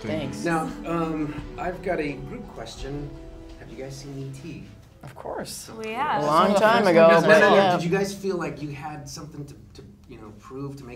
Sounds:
Music, Speech

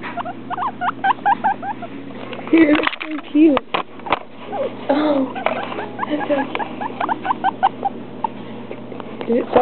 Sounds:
Speech

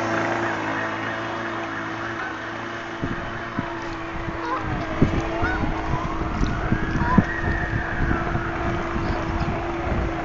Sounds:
Vehicle, sailing ship, Motorboat

